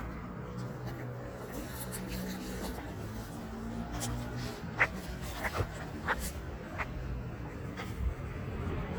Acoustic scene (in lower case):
street